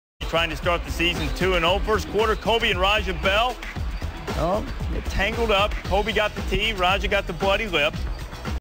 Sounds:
music, speech

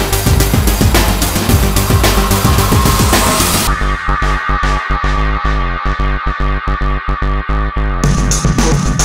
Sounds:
soundtrack music, music

